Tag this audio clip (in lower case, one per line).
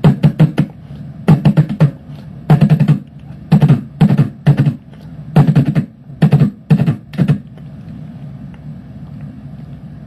beatboxing